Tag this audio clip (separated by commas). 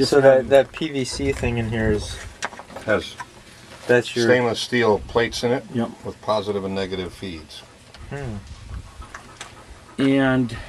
Speech